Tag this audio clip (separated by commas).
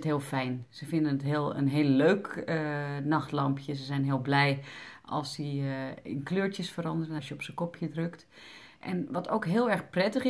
Speech